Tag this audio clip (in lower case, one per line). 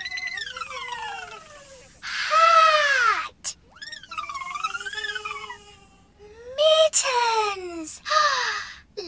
speech